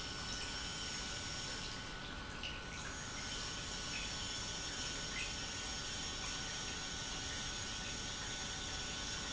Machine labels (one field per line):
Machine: pump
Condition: normal